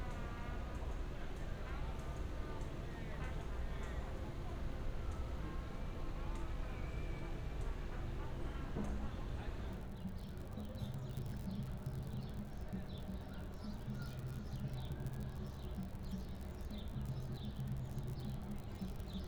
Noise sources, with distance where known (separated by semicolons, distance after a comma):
music from a fixed source, far; person or small group talking